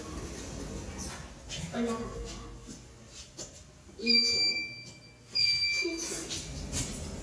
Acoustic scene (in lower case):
elevator